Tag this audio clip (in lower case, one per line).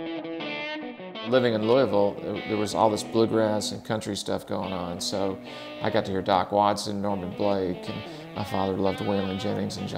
music
speech
strum
plucked string instrument
guitar
musical instrument